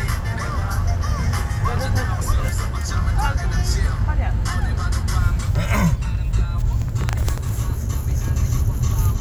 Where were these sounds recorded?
in a car